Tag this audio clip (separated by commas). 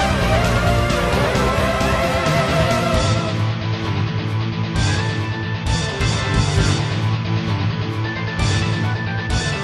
Music